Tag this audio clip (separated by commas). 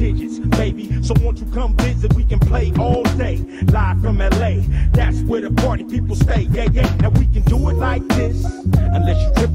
Music, Hip hop music, Rapping